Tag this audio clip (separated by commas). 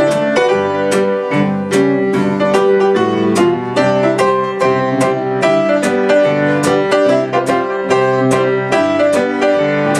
Music